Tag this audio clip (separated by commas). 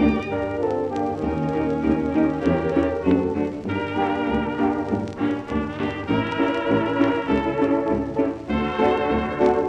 Jazz, Music